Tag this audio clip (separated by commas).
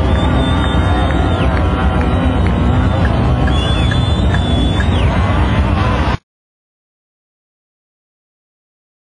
Car, Vehicle, Motor vehicle (road)